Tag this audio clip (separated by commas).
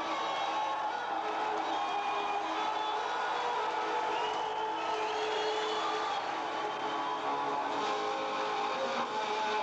Music